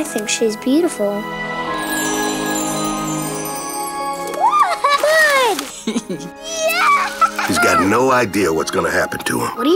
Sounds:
Music, Speech

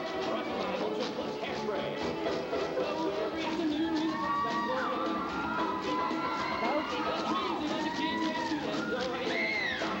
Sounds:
Music

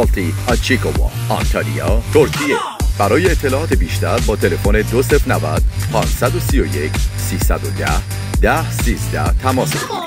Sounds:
Speech, Music

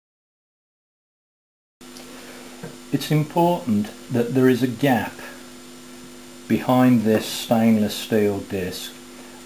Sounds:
Speech

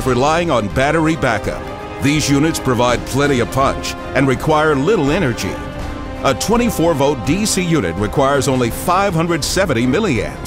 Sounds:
Music, Speech

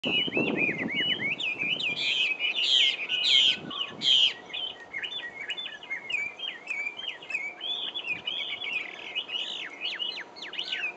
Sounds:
wood thrush calling

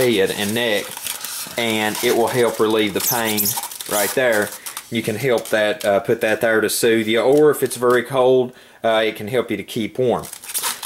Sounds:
Speech

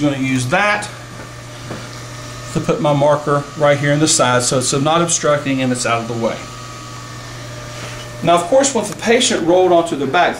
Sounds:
Speech, inside a small room

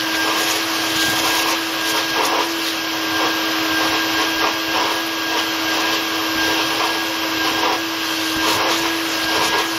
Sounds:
Vacuum cleaner

